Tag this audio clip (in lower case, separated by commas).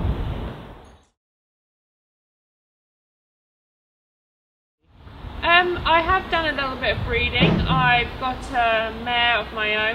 silence, outside, urban or man-made, speech